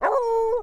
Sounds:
Domestic animals, Dog, Animal

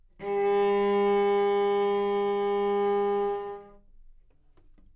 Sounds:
Bowed string instrument, Musical instrument, Music

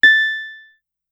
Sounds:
Keyboard (musical), Music, Piano, Musical instrument

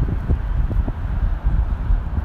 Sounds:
Wind

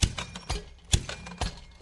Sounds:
Mechanisms

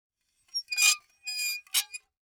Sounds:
dishes, pots and pans, home sounds

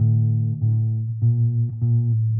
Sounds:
Plucked string instrument, Musical instrument, Music, Bass guitar, Guitar

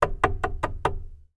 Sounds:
Domestic sounds, Wood, Knock, Door

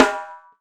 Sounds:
Music, Snare drum, Drum, Musical instrument, Percussion

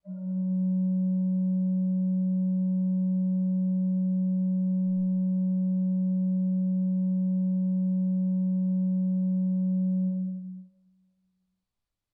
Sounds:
Music, Organ, Musical instrument, Keyboard (musical)

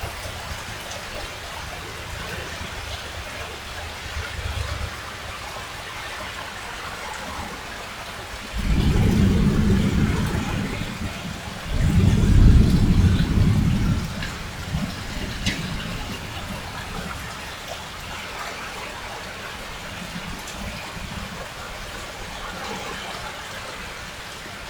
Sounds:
Water, Rain, Thunderstorm, Thunder

